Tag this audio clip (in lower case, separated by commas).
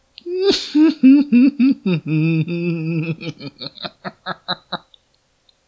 human voice, laughter